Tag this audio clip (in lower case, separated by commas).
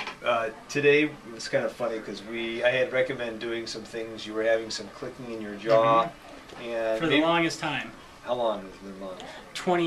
speech